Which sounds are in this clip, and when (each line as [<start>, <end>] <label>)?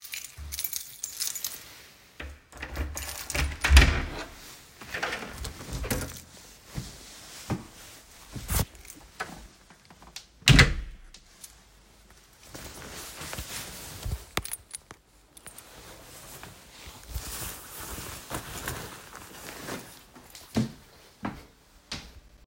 [0.02, 1.66] keys
[2.38, 3.57] keys
[3.60, 4.32] door
[5.55, 6.30] keys
[6.62, 8.64] footsteps
[10.30, 11.01] door
[14.26, 15.67] keys
[20.34, 22.07] footsteps